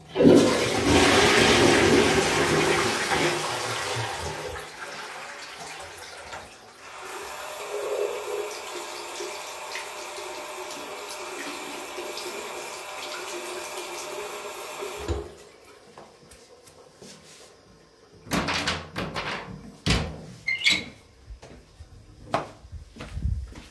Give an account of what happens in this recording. I flushed the toilet and washed my hands. As I did not have a towel I flailed my hands before opening the door.